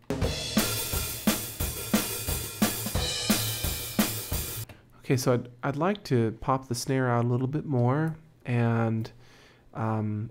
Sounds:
Music, Speech

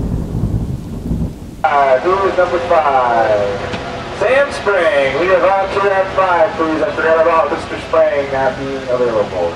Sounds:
Speech

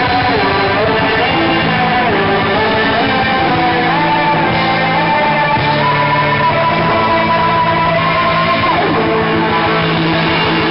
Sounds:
inside a large room or hall, Music

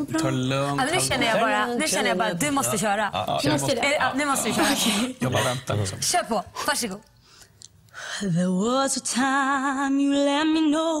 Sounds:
Speech

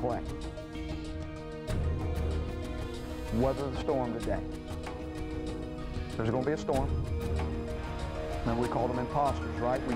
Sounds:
Music, Narration, man speaking, Speech

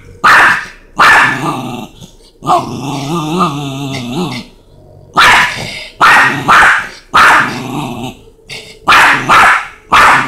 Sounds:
Animal, Dog, inside a large room or hall, pets, Growling

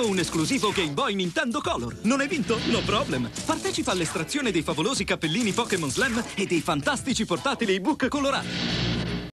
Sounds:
Music, Speech

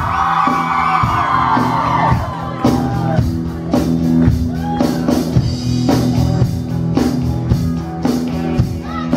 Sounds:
Music, Speech

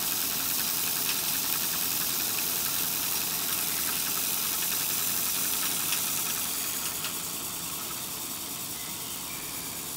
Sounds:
Rattle, Steam, Hiss

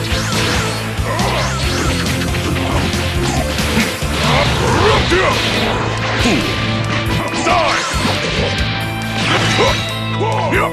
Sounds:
Music

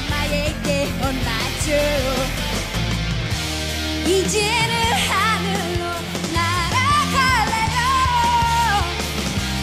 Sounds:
Pop music, Music

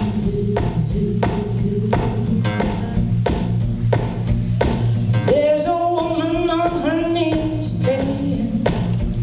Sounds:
Music

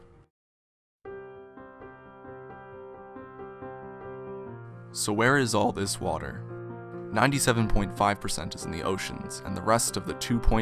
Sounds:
Music, Speech

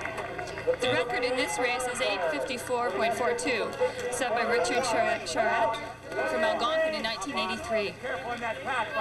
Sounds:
Run, Speech, outside, urban or man-made

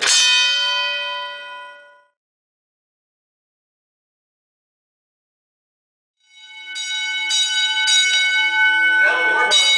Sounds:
Speech

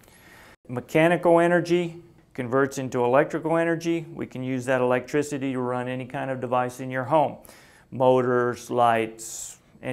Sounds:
Speech

